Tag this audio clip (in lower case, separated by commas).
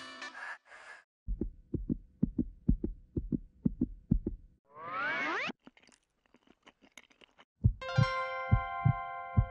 music for children, music